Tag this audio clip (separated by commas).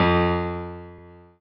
Musical instrument, Keyboard (musical), Piano, Music